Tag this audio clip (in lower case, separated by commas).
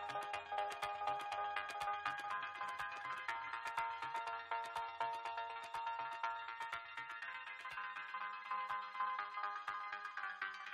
electronic music, electronica, music